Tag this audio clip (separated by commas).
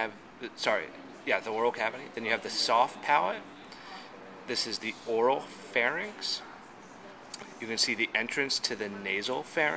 Speech